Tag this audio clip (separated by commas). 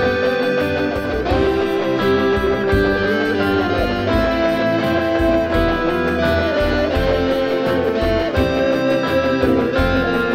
inside a small room, Music, Guitar, Musical instrument